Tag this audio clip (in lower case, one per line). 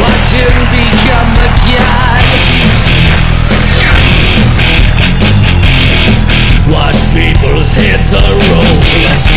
musical instrument
music
plucked string instrument
electric guitar
strum
guitar